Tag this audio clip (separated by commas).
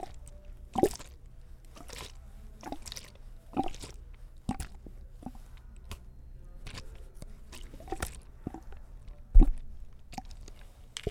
Liquid